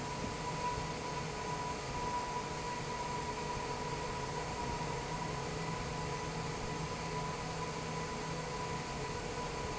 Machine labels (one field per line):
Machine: fan